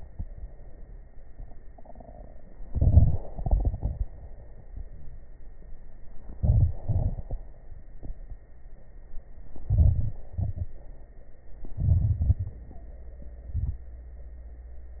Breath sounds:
2.61-3.27 s: inhalation
2.61-3.27 s: crackles
3.32-4.20 s: exhalation
3.32-4.20 s: crackles
6.32-6.82 s: crackles
6.37-6.81 s: inhalation
6.81-7.46 s: exhalation
6.83-7.46 s: crackles
9.60-10.23 s: inhalation
9.60-10.23 s: crackles
10.31-10.79 s: exhalation
10.31-10.79 s: crackles
11.71-12.65 s: inhalation
11.71-12.65 s: crackles
13.48-13.87 s: exhalation
13.48-13.87 s: crackles

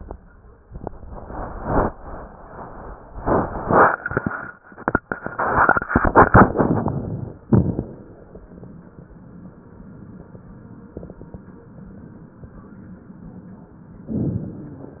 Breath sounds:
6.52-7.43 s: inhalation
7.47-8.38 s: exhalation
14.08-15.00 s: inhalation

